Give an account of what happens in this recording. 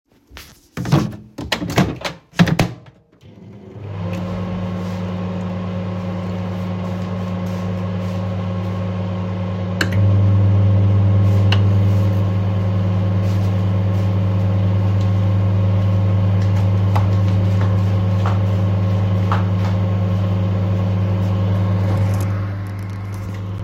I heated my cup of coffee using microwave